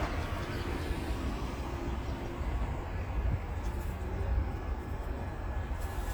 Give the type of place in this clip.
street